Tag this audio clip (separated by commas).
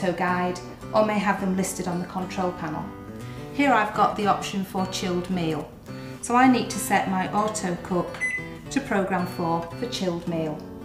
Speech, Music